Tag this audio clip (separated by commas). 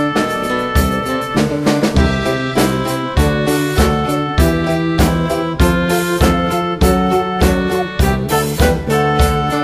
Music